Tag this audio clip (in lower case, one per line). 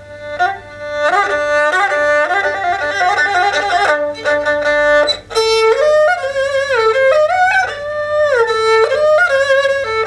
musical instrument
music
fiddle